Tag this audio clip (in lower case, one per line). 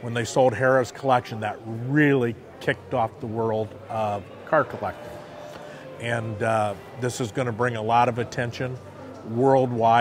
music
speech